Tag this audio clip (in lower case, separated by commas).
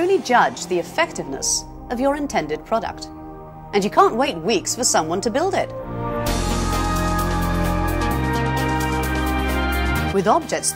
music, speech